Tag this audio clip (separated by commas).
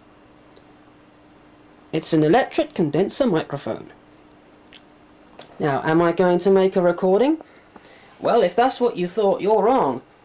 Speech